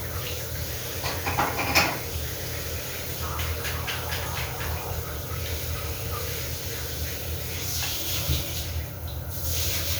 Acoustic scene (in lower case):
restroom